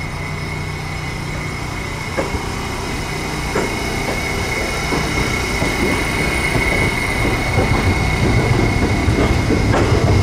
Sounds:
train, train wagon, rail transport, outside, urban or man-made, vehicle

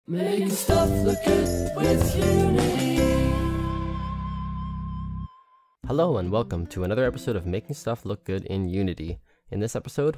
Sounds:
speech, music

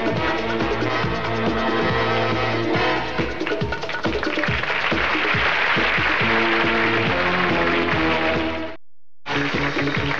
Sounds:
music

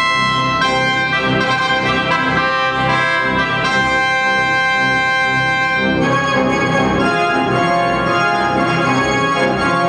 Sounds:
playing electronic organ

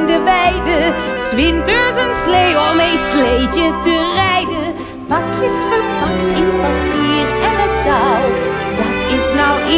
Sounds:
music

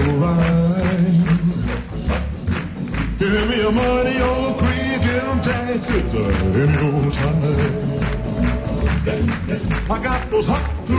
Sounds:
music, rock and roll

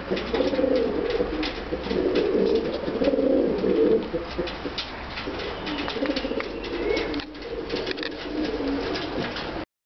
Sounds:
pigeon, inside a small room, bird

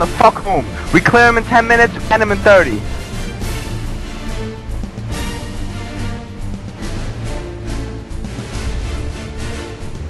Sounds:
speech, monologue, male speech, music

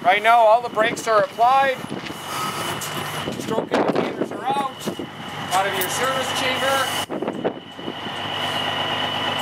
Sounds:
speech

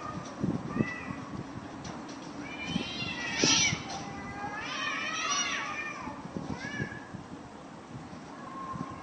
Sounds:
crow cawing, caw, animal

